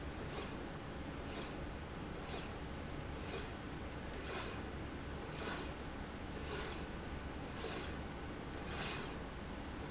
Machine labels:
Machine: slide rail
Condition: normal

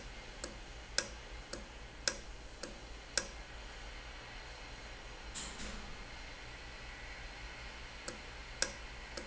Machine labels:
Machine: valve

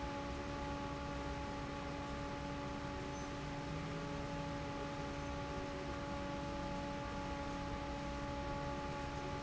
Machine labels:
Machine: fan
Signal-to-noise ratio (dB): 0 dB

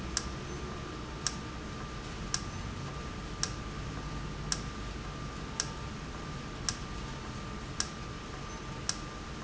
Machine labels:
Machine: valve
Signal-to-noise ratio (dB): -6 dB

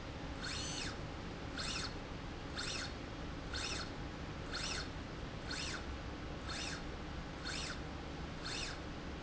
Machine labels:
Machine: slide rail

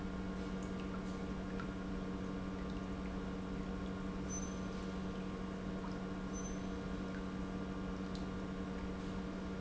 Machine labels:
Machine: pump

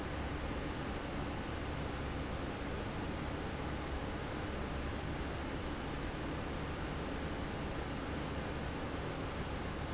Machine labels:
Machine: fan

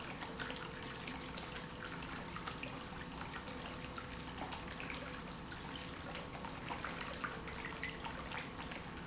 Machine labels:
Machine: pump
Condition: normal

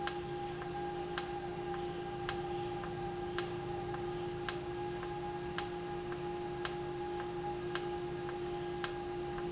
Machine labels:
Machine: valve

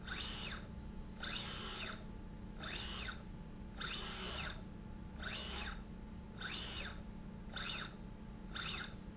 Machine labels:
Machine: slide rail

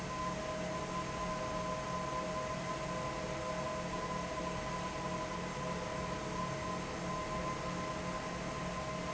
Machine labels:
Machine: fan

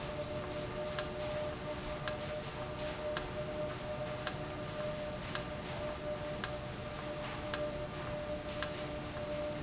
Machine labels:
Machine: valve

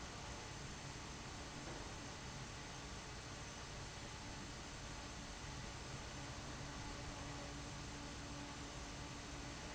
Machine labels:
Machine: fan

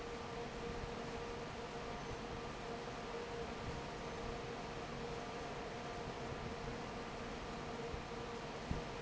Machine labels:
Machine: fan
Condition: normal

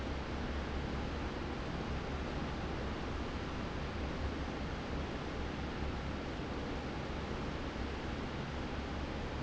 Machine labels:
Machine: fan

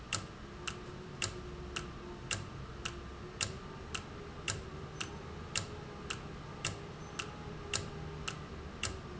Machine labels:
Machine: valve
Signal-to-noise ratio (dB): 0 dB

